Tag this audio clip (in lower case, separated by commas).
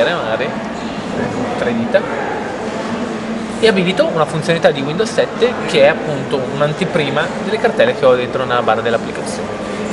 speech